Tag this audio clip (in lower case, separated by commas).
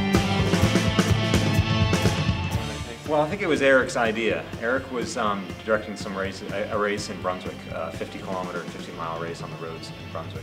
music, speech